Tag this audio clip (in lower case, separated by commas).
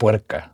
speech, human voice, man speaking